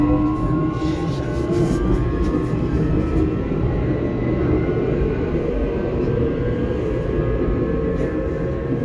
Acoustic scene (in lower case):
subway train